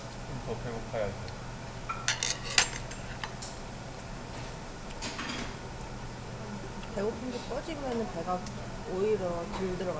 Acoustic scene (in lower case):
restaurant